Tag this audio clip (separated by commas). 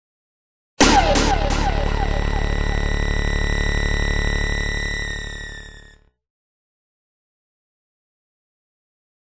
Music